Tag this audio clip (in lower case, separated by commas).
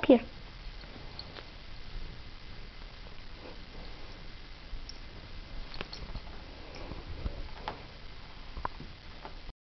speech